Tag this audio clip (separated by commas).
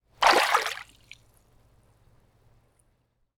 Liquid, Splash